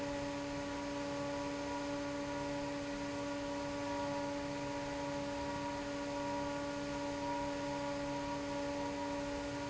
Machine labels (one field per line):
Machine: fan